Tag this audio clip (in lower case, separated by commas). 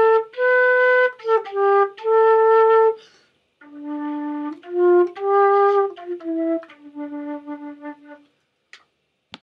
flute, music, traditional music